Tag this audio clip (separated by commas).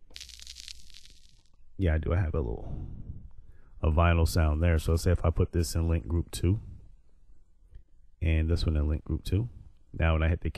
Speech